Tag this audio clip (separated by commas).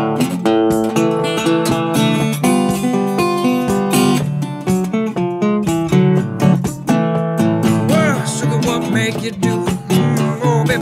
playing steel guitar